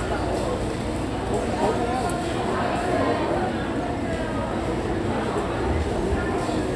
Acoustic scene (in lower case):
restaurant